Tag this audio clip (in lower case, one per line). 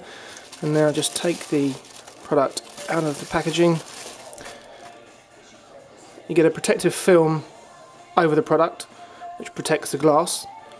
music
speech